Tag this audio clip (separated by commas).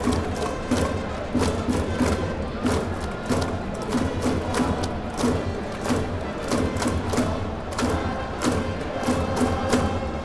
Human group actions, Crowd